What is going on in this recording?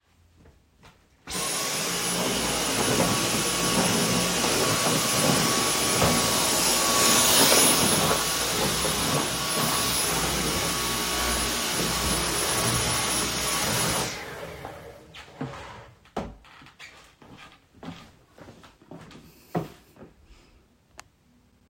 I was vacuuming my kitchen.